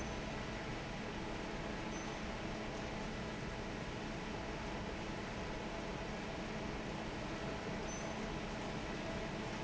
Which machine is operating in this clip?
fan